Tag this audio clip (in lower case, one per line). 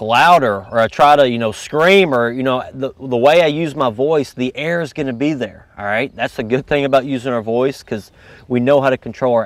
speech